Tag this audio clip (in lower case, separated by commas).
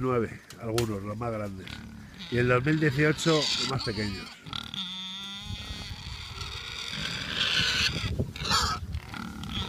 pig, speech, animal